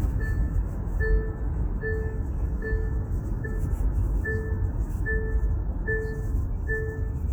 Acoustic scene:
car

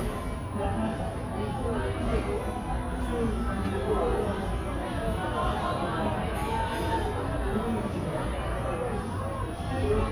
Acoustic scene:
cafe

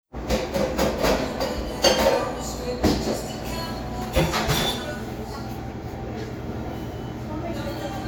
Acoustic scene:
cafe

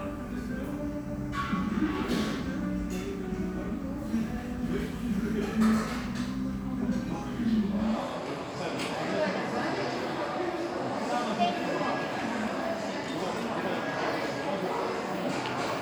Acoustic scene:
restaurant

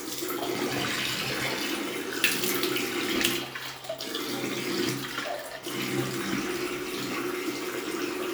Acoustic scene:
restroom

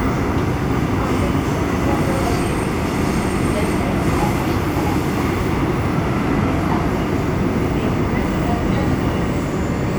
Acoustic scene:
subway train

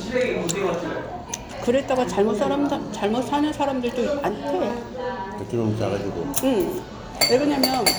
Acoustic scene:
restaurant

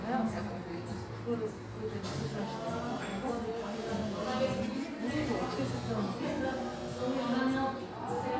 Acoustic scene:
cafe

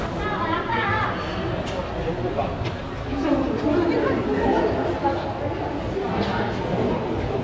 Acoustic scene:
crowded indoor space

